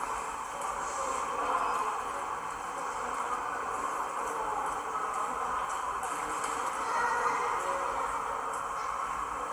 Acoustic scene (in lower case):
subway station